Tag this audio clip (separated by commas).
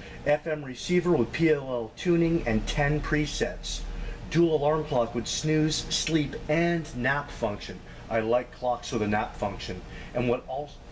Speech